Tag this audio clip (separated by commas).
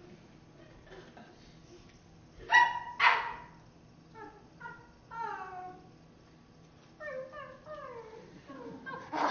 inside a small room